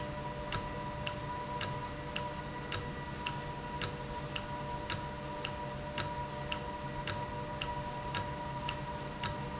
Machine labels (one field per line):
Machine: valve